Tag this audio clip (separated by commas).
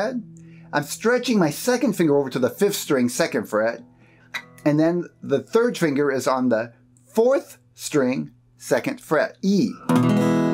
Plucked string instrument, Music, Strum, Musical instrument, Speech, Guitar